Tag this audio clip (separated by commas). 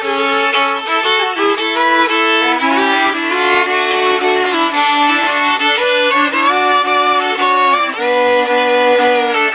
Musical instrument, Music, fiddle